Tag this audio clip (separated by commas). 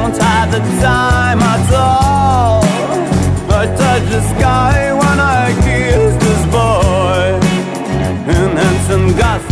Grunge